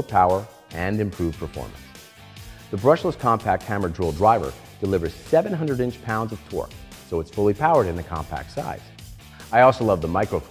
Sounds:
music
speech

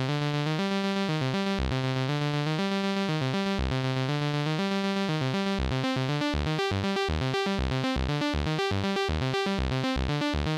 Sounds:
sampler
music

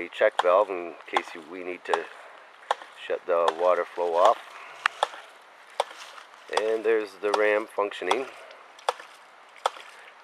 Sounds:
pumping water

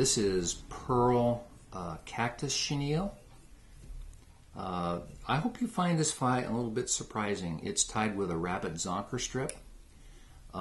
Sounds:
speech

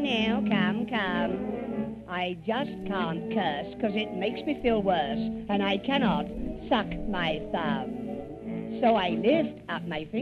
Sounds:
music
speech

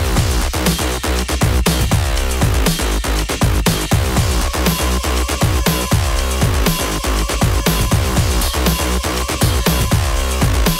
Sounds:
dubstep
music

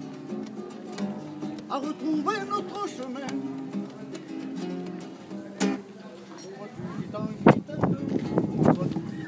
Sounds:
music

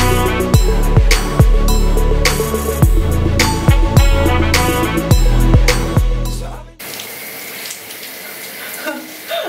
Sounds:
water

